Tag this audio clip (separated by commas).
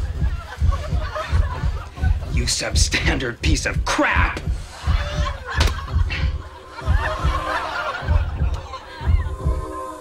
Speech, inside a small room, Music